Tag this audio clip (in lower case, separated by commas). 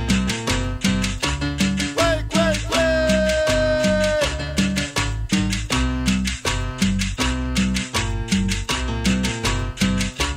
sound effect